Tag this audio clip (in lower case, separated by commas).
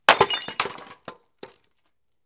glass